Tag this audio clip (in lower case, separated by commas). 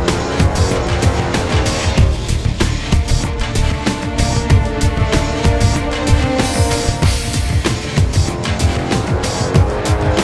music, angry music